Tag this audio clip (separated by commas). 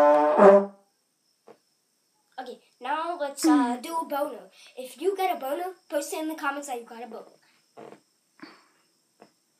Child speech, Speech, Trombone, Musical instrument, Brass instrument, Music